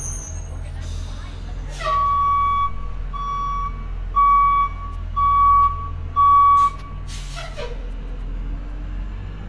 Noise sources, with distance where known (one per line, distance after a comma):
reverse beeper, near